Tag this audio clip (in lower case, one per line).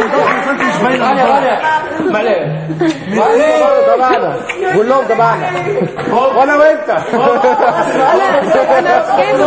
speech
chatter
music
inside a large room or hall